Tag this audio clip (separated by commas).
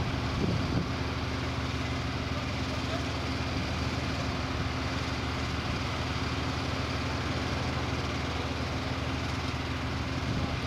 Vehicle, outside, urban or man-made